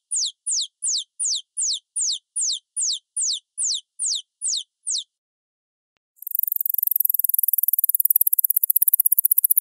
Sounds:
mouse pattering

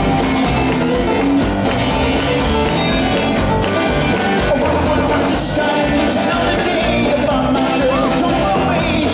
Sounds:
music

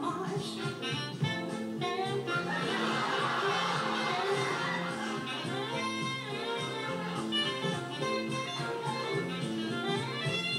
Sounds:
music

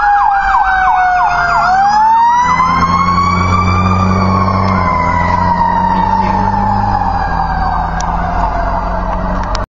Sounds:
vehicle
vroom

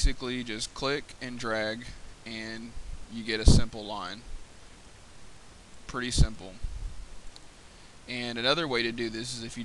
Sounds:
speech

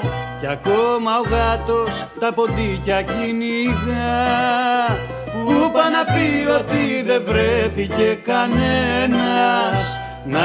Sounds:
music

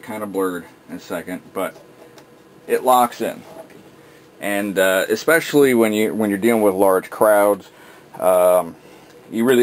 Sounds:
speech

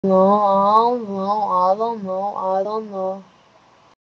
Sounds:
speech

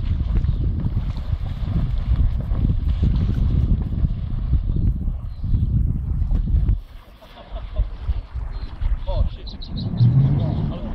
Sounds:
boat
vehicle
canoe
rowboat
speech

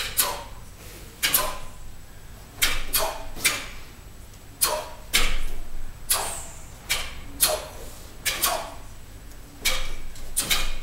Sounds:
inside a large room or hall

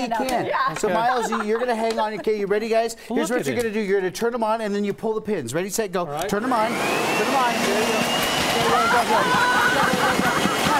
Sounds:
speech

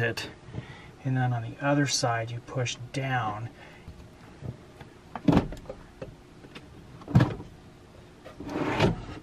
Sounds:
opening or closing drawers

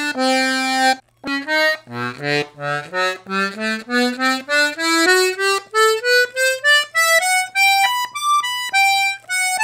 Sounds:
music
musical instrument
accordion
playing accordion

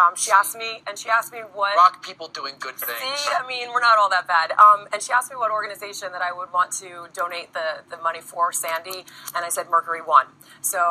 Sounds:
radio
speech

